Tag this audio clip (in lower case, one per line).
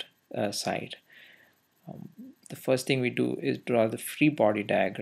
speech